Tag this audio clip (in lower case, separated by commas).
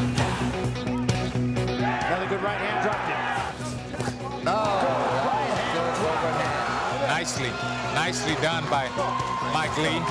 music, speech